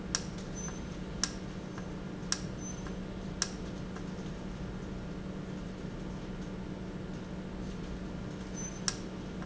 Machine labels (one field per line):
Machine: valve